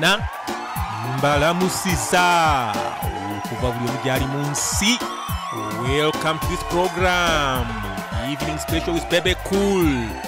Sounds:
speech, music

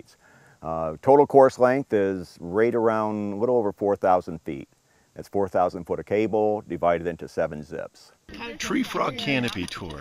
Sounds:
speech

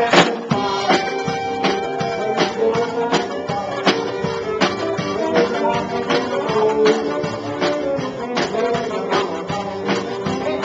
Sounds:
music, rock and roll

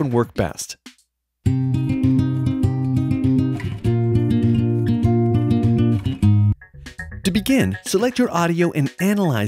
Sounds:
speech, music

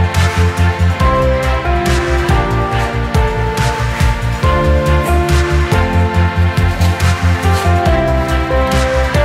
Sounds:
music

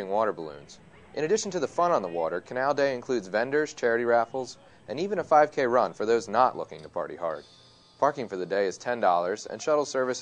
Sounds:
speech

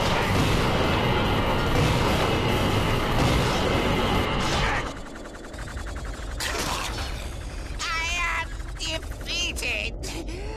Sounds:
mechanisms

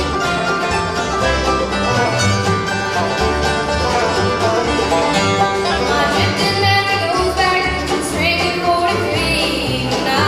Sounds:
bluegrass, music

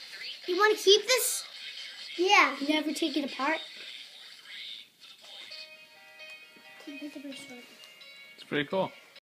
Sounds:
speech, music

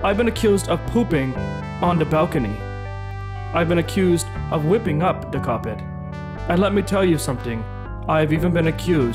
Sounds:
music, speech

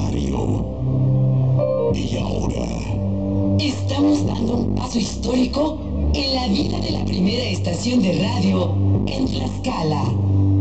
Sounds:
speech, music

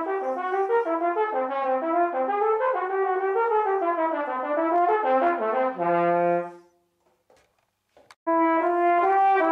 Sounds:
music, trumpet

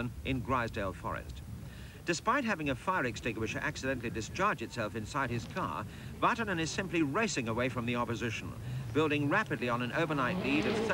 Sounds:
car, speech, vehicle

